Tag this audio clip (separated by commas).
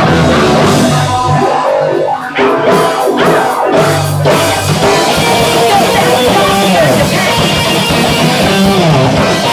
Speech, Music